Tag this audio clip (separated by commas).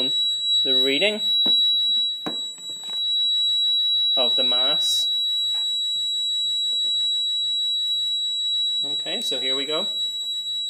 Speech